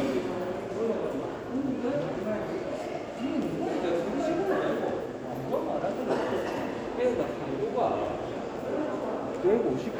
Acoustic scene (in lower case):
crowded indoor space